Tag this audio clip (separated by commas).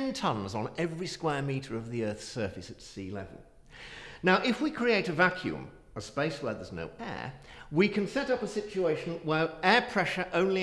Speech